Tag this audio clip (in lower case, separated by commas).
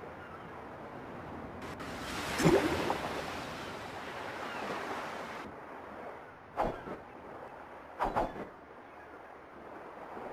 sailing ship